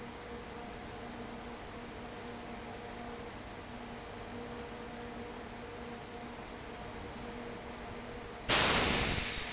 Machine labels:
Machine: fan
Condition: abnormal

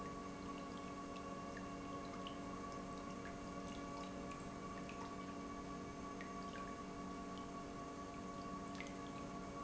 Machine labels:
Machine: pump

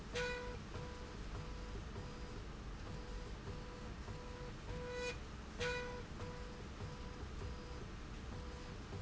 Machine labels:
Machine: slide rail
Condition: normal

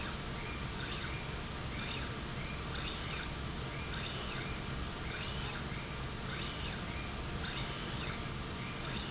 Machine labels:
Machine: slide rail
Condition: normal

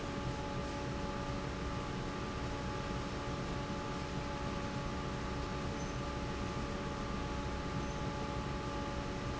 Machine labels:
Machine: fan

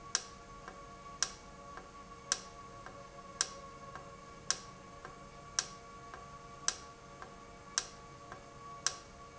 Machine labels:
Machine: valve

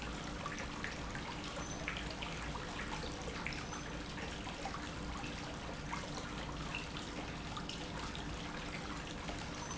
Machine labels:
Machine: pump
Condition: normal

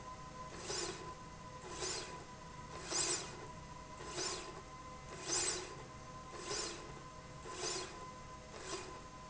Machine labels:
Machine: slide rail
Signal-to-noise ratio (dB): 6 dB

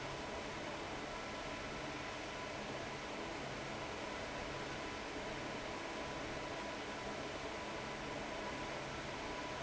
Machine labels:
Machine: fan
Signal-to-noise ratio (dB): 6 dB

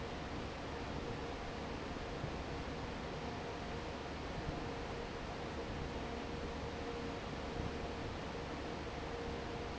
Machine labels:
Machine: fan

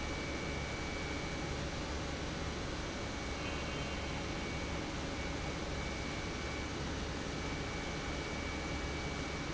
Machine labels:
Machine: pump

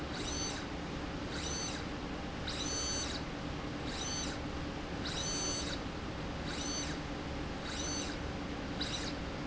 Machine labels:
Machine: slide rail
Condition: abnormal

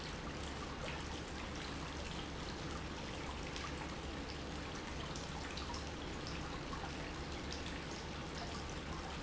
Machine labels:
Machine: pump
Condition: normal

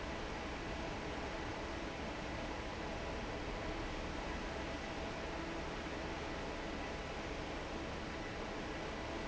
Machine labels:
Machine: fan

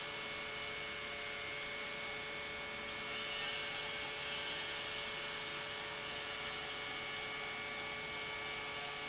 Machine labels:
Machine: pump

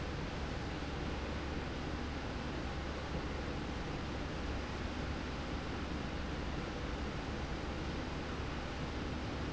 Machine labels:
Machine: slide rail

